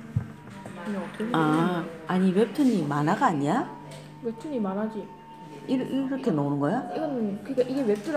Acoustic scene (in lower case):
crowded indoor space